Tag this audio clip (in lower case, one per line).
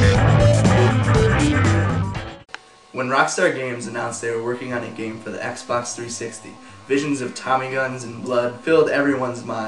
ping
music
speech